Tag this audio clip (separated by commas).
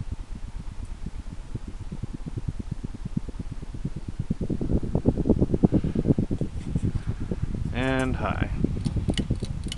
Speech